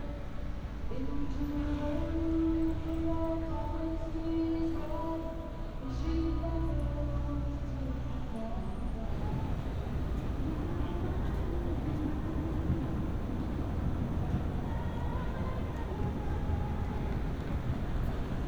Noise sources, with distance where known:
music from a fixed source

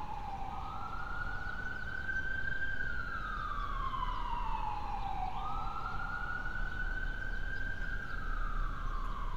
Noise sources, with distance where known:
siren, far

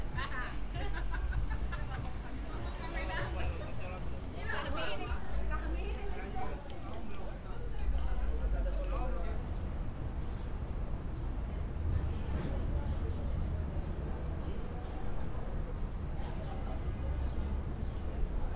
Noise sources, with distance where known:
person or small group talking

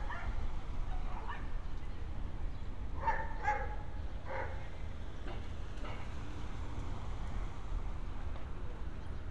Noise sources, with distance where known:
dog barking or whining, far

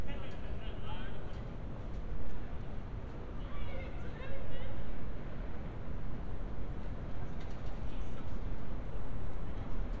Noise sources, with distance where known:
person or small group talking, far; person or small group shouting, far

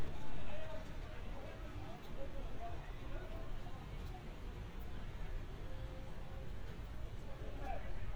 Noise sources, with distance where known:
person or small group shouting, far

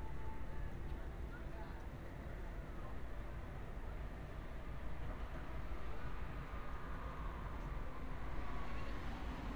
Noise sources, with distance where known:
person or small group talking

